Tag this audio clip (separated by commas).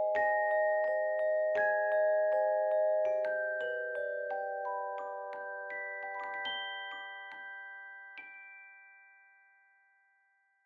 Keyboard (musical)